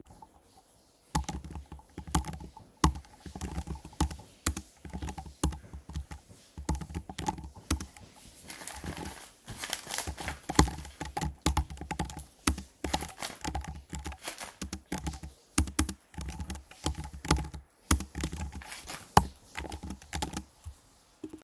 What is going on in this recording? I am typing on my Macbook while going through some printed documents; in the bathroom next to the living room my girlfriend is taking a shower.